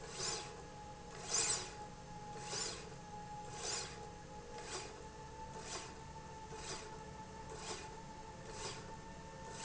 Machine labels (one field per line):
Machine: slide rail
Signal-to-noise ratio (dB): 6 dB